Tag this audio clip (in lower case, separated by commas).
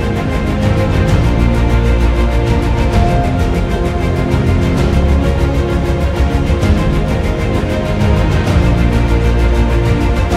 music